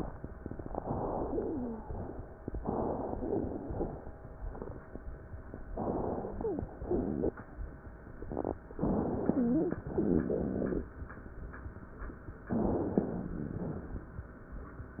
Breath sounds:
Inhalation: 0.46-1.52 s, 2.50-3.57 s, 5.71-6.68 s, 8.77-9.83 s, 12.52-13.34 s
Exhalation: 1.78-2.28 s, 3.61-4.08 s, 9.96-10.78 s, 13.34-14.27 s
Wheeze: 1.22-1.80 s, 5.92-6.72 s, 9.32-9.83 s, 12.52-12.90 s
Crackles: 0.46-1.52 s

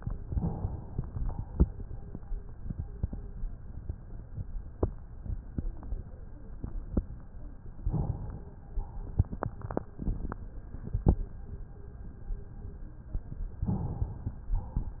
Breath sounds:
Inhalation: 0.21-0.93 s, 7.89-8.52 s, 13.66-14.40 s
Exhalation: 0.93-1.55 s, 8.73-9.26 s, 14.49-15.00 s

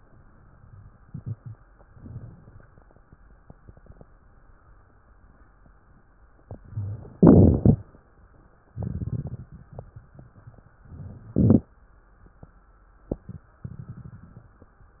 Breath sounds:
Inhalation: 1.86-2.71 s, 6.29-7.15 s, 10.86-11.72 s
Exhalation: 7.20-8.05 s, 8.74-9.50 s
Crackles: 7.20-8.05 s, 8.74-9.50 s, 10.86-11.72 s

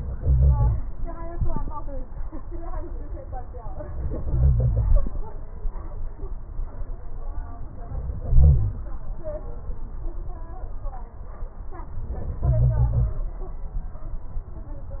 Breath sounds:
Inhalation: 0.00-0.79 s, 3.92-5.33 s, 7.89-8.94 s, 12.47-13.23 s

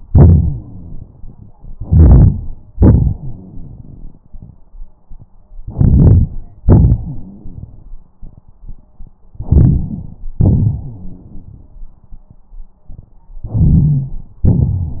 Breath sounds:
Inhalation: 1.78-2.73 s, 5.58-6.63 s, 9.36-10.37 s, 13.48-14.52 s
Exhalation: 0.09-1.71 s, 2.75-4.69 s, 6.67-8.15 s, 10.40-12.19 s
Rhonchi: 0.10-1.05 s, 1.75-2.68 s, 2.76-4.54 s, 5.58-6.63 s, 6.67-8.15 s, 9.36-10.37 s, 10.40-12.19 s, 13.48-14.50 s

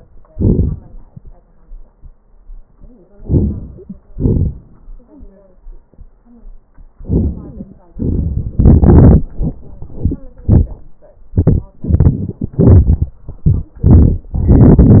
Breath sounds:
Inhalation: 0.30-0.74 s, 3.13-4.04 s, 6.95-7.86 s
Exhalation: 4.03-4.93 s, 7.87-8.57 s

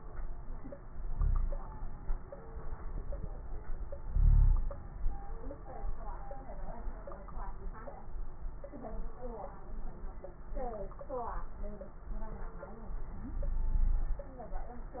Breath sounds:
Inhalation: 1.11-1.68 s, 4.05-4.70 s, 13.29-14.27 s
Wheeze: 1.11-1.68 s, 4.05-4.70 s, 13.29-14.27 s

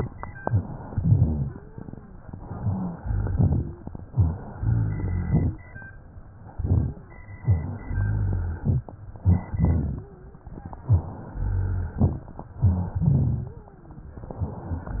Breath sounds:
Inhalation: 0.36-0.82 s, 2.30-2.92 s, 4.12-4.54 s, 6.58-6.98 s, 9.17-9.51 s, 10.85-11.31 s, 12.60-12.98 s
Exhalation: 0.89-1.54 s, 2.98-3.80 s, 4.55-5.54 s, 7.44-8.67 s, 9.56-10.11 s, 11.35-12.05 s, 12.96-13.66 s
Rhonchi: 0.89-1.54 s, 2.50-2.92 s, 2.98-3.80 s, 4.12-4.54 s, 4.55-5.54 s, 6.58-6.98 s, 7.44-8.67 s, 9.56-10.11 s, 11.35-12.05 s, 12.60-12.98 s, 13.04-13.59 s
Crackles: 0.38-0.84 s, 9.17-9.51 s

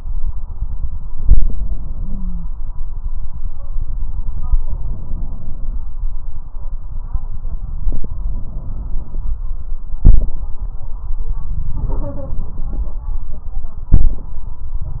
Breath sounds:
Inhalation: 1.12-2.19 s, 4.61-5.86 s, 8.15-9.40 s, 11.79-13.04 s
Exhalation: 9.96-10.50 s, 13.90-14.44 s
Wheeze: 2.00-2.44 s

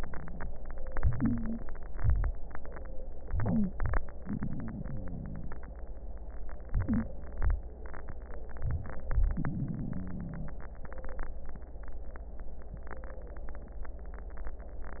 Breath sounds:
Inhalation: 0.95-1.63 s, 3.34-4.02 s, 6.71-7.48 s, 8.64-9.41 s
Exhalation: 1.63-2.31 s, 4.25-5.48 s, 7.44-8.21 s, 9.39-10.58 s
Wheeze: 0.94-1.61 s, 3.34-4.02 s, 6.71-7.48 s
Crackles: 1.63-2.31 s, 4.21-5.59 s, 7.46-8.23 s, 9.37-10.60 s

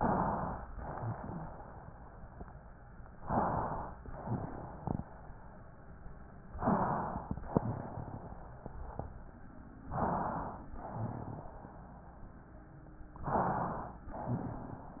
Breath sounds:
Inhalation: 0.00-0.64 s, 3.19-3.94 s, 6.60-7.35 s, 9.92-10.68 s, 13.25-14.02 s
Exhalation: 0.74-1.83 s, 4.08-5.16 s, 7.45-8.63 s, 10.80-11.99 s, 14.13-15.00 s

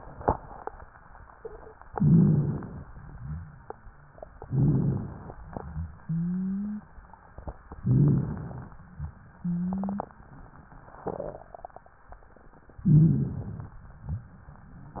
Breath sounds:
Inhalation: 1.91-2.79 s, 4.48-5.36 s, 7.81-8.70 s, 12.85-13.73 s
Exhalation: 2.87-4.26 s, 5.40-6.91 s, 8.79-10.12 s
Wheeze: 6.00-6.91 s, 9.34-10.12 s
Rhonchi: 1.91-2.79 s, 3.03-3.64 s, 4.48-5.36 s, 7.81-8.70 s, 12.85-13.73 s

